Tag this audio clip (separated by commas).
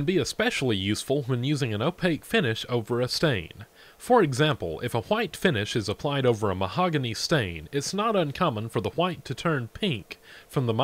Speech